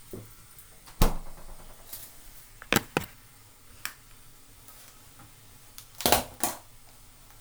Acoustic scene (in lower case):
kitchen